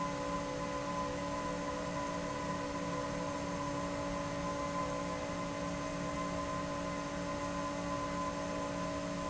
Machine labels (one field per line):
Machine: fan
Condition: abnormal